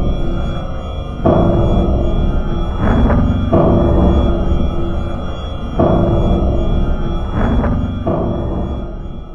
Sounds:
music, scary music

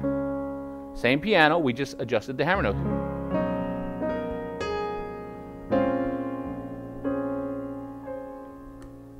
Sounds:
music, musical instrument, piano, keyboard (musical), speech

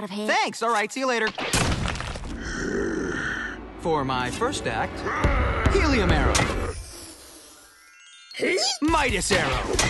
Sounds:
arrow

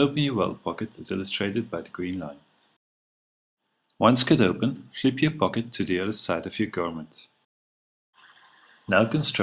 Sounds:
speech

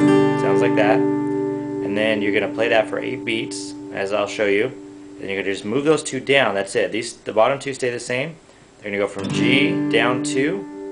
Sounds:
strum, plucked string instrument, speech, guitar, music, musical instrument, acoustic guitar

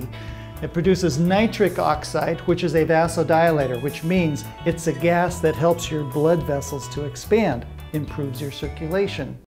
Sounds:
music, speech

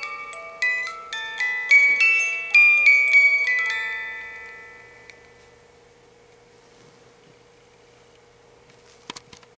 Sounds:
music

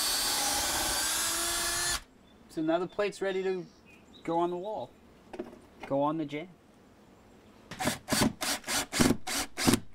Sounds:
speech

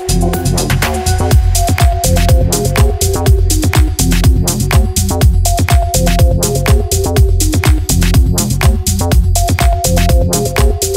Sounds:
music, sampler

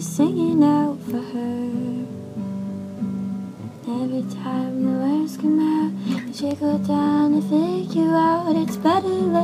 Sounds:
music

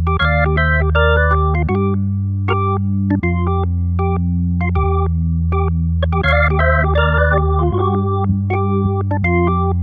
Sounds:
synthesizer, music

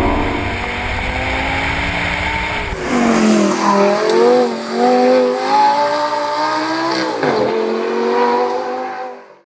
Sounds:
heavy engine (low frequency), car, vehicle, accelerating

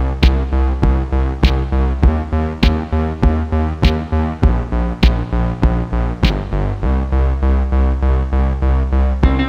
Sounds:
music

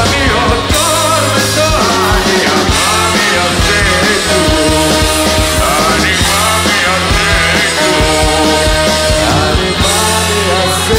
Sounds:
singing, music

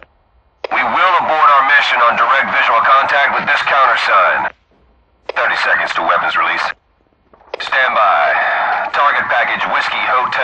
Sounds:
police radio chatter

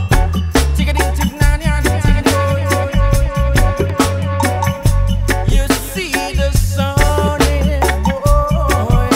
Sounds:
music

